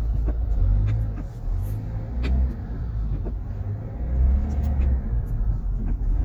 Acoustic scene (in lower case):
car